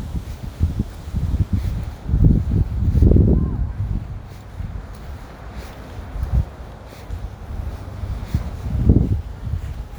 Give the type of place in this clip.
residential area